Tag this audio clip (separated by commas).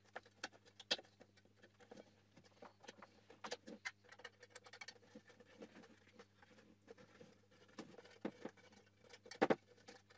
inside a small room